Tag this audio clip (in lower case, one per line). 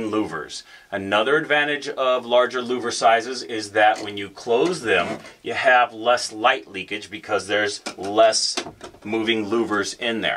speech